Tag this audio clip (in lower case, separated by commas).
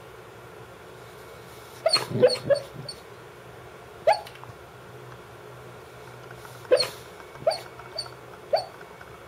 bark, wild animals, animal, canids, pets, dog